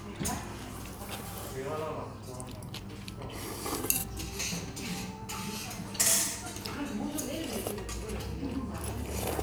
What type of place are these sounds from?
restaurant